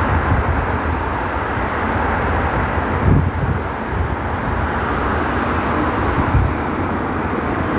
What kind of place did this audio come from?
street